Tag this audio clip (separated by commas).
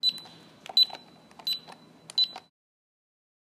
Alarm